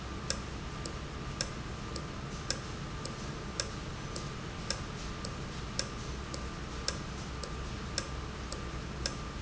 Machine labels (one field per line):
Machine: valve